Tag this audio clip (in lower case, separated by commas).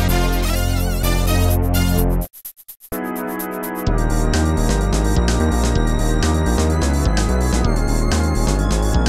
music